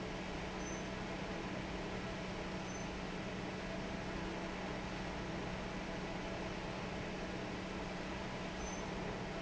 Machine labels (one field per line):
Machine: fan